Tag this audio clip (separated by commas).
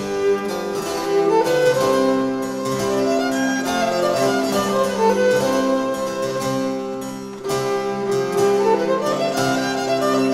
Bowed string instrument, Classical music, Musical instrument, Music, Harpsichord, fiddle